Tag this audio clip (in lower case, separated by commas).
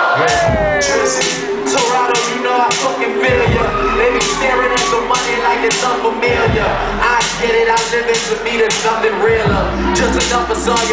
crowd